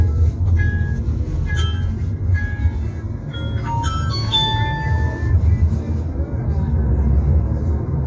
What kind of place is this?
car